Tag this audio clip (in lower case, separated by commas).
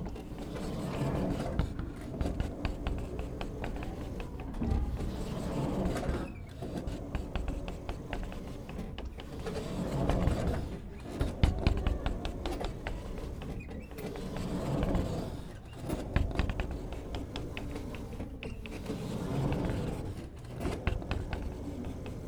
home sounds, door, sliding door